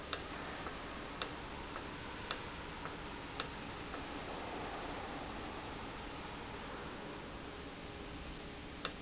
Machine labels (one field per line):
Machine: valve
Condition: normal